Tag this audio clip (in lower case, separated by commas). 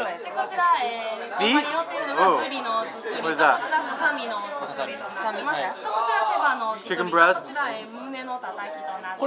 speech